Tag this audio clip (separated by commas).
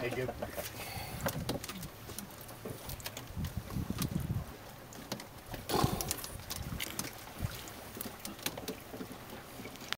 Snort, Speech, Animal